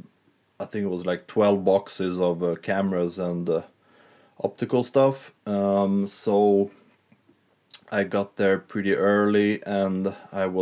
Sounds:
Speech

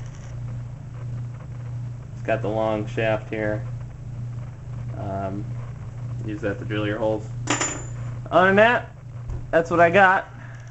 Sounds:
Speech

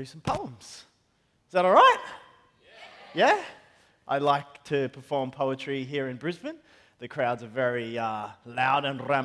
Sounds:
Speech

